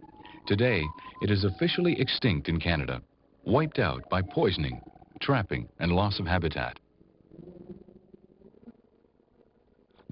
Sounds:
speech, music

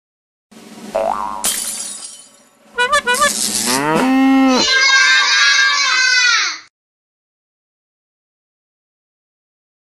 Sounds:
kid speaking, speech, music

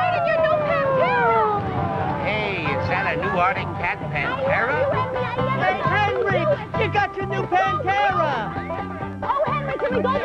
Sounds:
music, speech

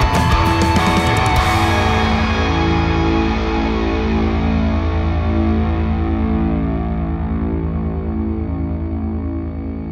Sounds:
music, plucked string instrument, distortion, guitar, musical instrument

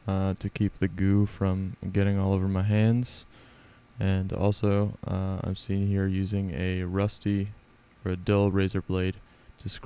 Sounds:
speech

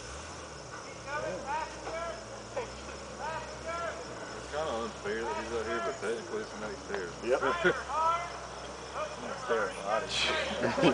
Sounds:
vehicle, speech

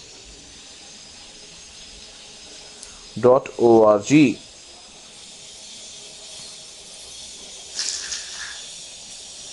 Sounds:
speech

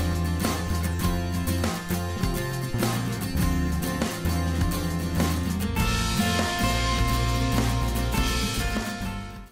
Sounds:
music

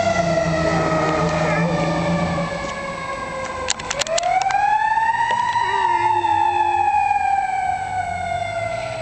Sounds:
fire engine, speech, vehicle

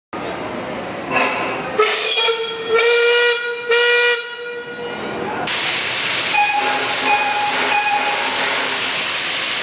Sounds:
train, train wagon, vehicle, rail transport, steam whistle

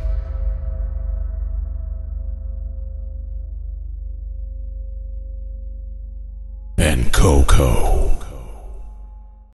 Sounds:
music, speech

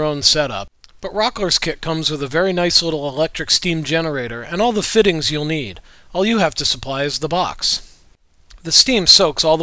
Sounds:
speech

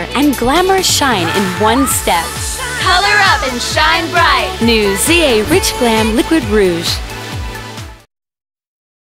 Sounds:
speech, music

